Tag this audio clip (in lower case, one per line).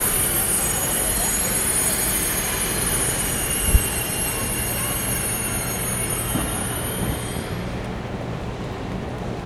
rail transport
vehicle
subway